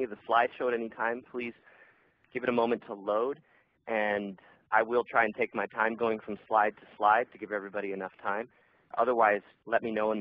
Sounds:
Speech

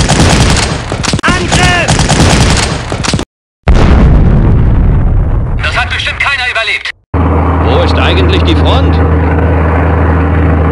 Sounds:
Speech

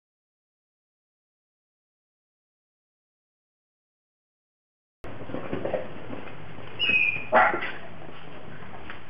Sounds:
Animal, Dog, pets

